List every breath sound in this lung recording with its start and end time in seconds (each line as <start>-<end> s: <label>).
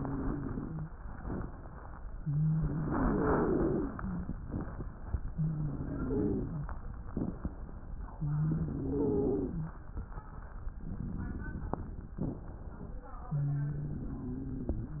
0.00-0.89 s: wheeze
2.18-4.32 s: inhalation
2.18-4.32 s: wheeze
5.34-6.69 s: inhalation
5.34-6.69 s: wheeze
8.16-9.76 s: inhalation
8.16-9.76 s: wheeze
13.30-15.00 s: inhalation
13.30-15.00 s: wheeze